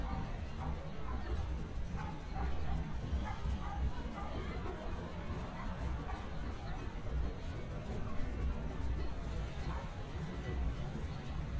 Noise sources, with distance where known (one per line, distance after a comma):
dog barking or whining, far